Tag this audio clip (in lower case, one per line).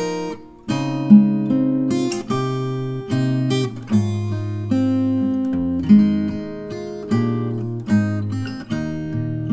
playing acoustic guitar
music
musical instrument
plucked string instrument
strum
acoustic guitar
guitar